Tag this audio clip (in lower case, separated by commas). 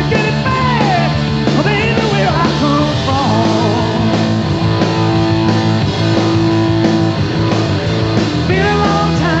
rock and roll, music